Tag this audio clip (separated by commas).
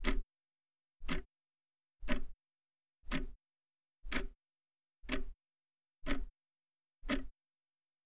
Tick, Tick-tock, Mechanisms, Clock